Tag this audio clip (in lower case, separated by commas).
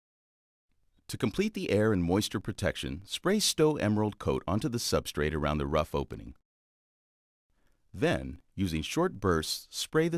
speech